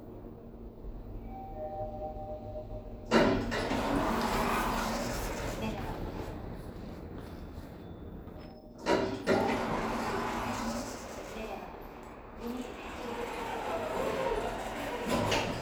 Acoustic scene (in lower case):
elevator